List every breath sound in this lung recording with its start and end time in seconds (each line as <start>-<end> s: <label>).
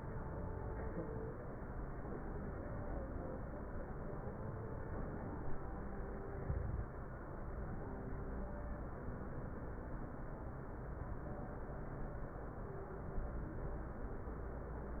6.33-6.97 s: inhalation